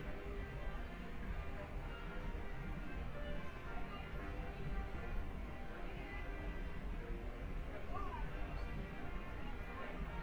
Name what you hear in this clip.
music from an unclear source